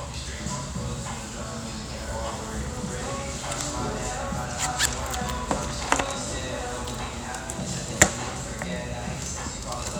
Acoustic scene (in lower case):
restaurant